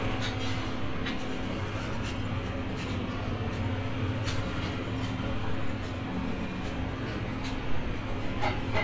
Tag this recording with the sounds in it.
large-sounding engine